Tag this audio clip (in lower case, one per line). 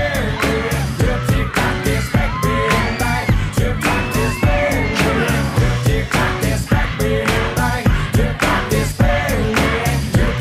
dance music
music
pop music